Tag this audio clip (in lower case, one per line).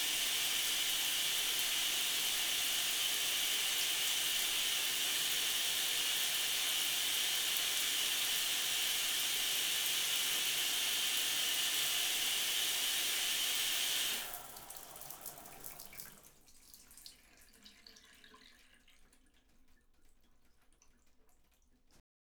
bathtub (filling or washing)
home sounds